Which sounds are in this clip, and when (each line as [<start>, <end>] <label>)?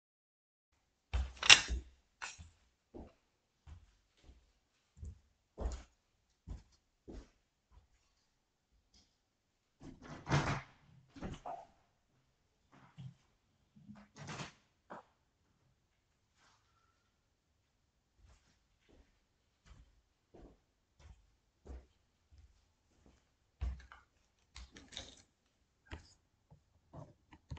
[1.65, 27.59] footsteps
[9.85, 11.78] window
[14.03, 14.61] window